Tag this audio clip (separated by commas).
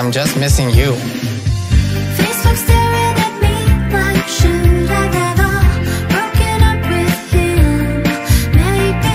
Music, Male speech